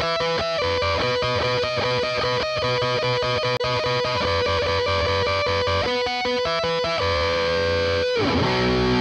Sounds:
music
plucked string instrument
strum
bass guitar
musical instrument
guitar

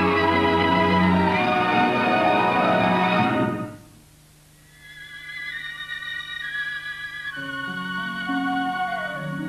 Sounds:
music
musical instrument

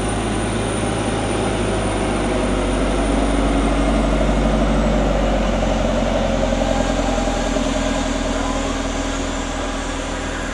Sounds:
vehicle
aircraft
outside, urban or man-made
fixed-wing aircraft

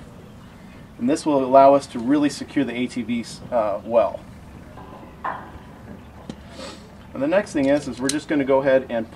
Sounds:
speech

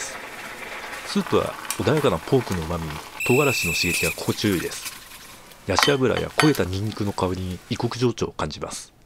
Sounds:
speech

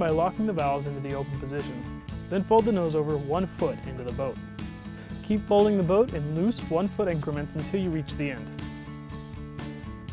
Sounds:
music
speech

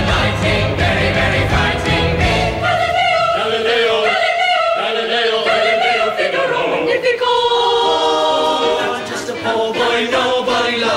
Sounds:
singing choir

